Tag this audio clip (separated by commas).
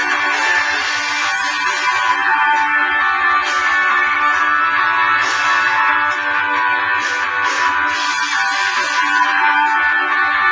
Music